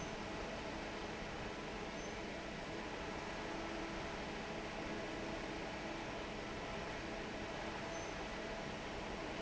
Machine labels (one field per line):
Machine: fan